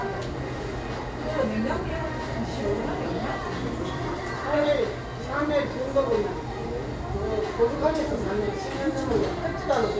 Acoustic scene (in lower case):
cafe